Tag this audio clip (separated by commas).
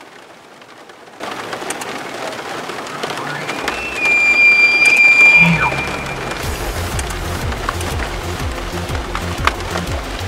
elk bugling